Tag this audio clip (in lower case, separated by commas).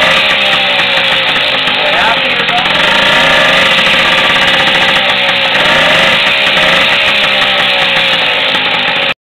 engine, speech, medium engine (mid frequency), accelerating